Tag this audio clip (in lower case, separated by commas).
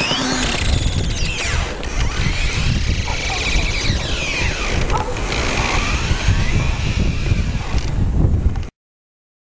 sound effect